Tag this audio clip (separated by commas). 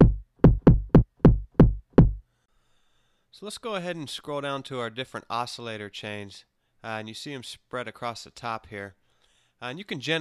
Drum machine